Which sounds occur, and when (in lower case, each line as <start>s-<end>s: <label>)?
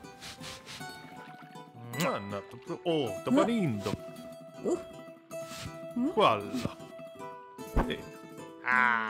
0.0s-9.0s: music
0.1s-0.8s: rub
0.9s-1.6s: water
1.9s-3.9s: man speaking
2.4s-3.0s: water
3.3s-3.5s: human voice
3.7s-3.9s: rub
4.5s-4.9s: human voice
5.3s-5.8s: rub
5.9s-6.7s: man speaking
5.9s-6.1s: human voice
6.4s-6.7s: rub
7.6s-8.0s: sound effect